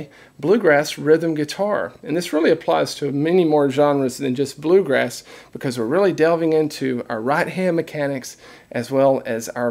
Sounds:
Speech

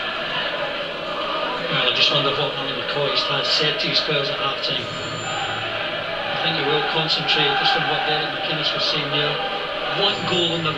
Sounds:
Speech

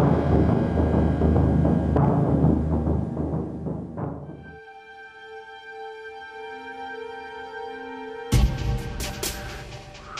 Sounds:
Music, Timpani

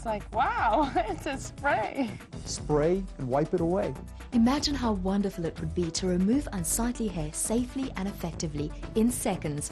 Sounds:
Music, Speech

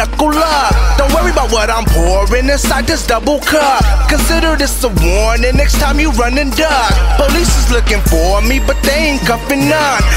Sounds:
Music

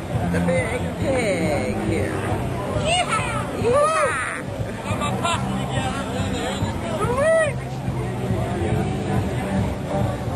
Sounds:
Music, Speech, speech noise, outside, urban or man-made

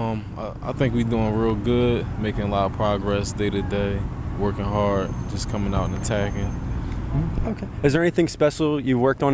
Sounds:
Speech

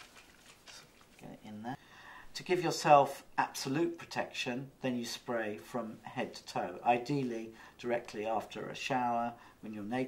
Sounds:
Speech

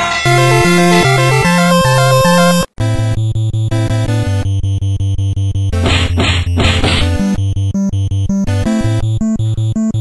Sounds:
Music

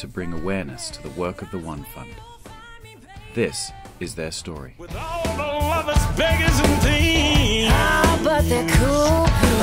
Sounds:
Music, Speech

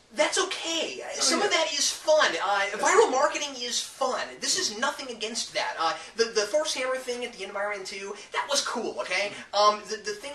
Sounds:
inside a small room, Speech

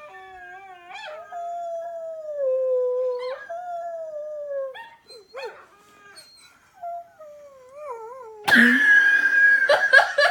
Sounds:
dog howling

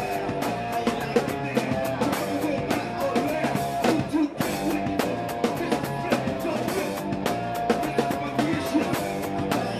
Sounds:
Music, Bass guitar, Guitar, Acoustic guitar, Strum, Musical instrument, Plucked string instrument, Electric guitar

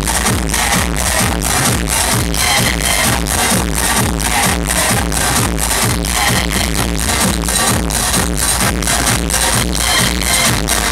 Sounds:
Music

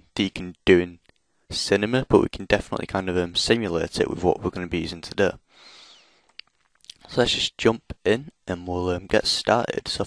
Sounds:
Speech

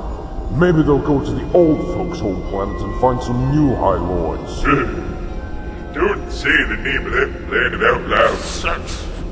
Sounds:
Music, Speech, Speech synthesizer

